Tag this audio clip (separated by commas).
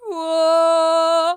Singing, Human voice, Female singing